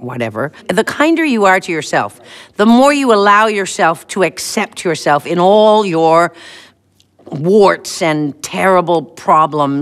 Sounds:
Speech

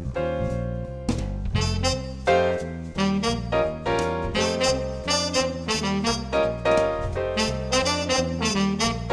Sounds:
Harmonica, Music

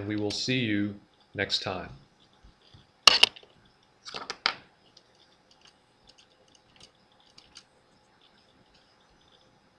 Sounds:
Speech

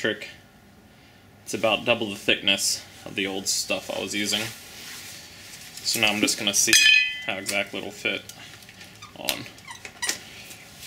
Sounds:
Speech

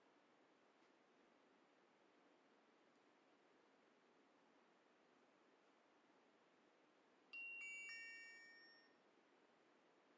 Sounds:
Music

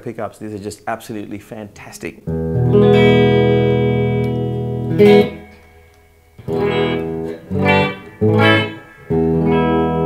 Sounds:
Music, Plucked string instrument, Musical instrument, Guitar

